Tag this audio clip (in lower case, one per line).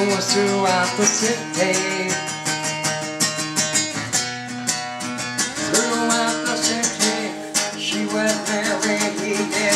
music